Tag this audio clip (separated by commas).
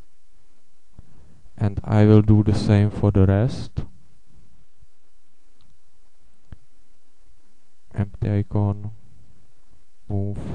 inside a small room, Speech